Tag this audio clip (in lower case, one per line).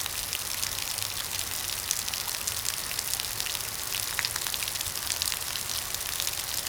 rain
water